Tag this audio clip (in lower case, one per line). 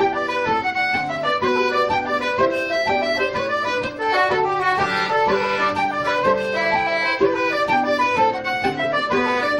music
flute
traditional music